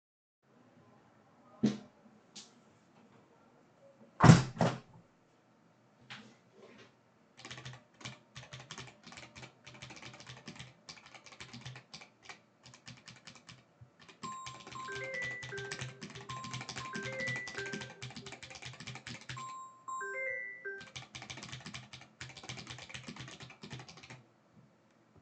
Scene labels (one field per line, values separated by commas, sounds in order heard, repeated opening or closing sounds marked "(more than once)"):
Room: office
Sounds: window, keyboard typing, phone ringing